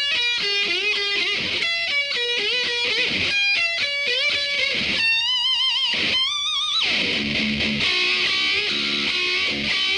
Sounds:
musical instrument
heavy metal
guitar
electric guitar
music
plucked string instrument

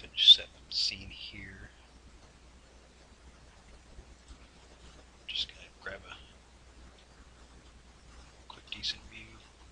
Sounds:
speech

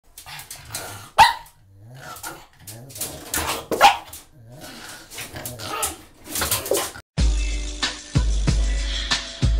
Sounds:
music
dog
growling
pets
animal

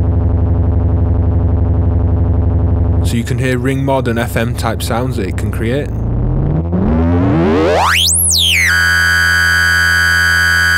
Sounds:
speech
synthesizer

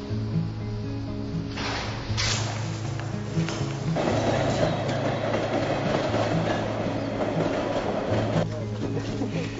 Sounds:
background music
music
speech

